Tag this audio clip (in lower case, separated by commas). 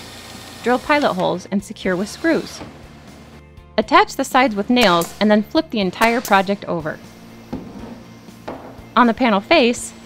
speech, music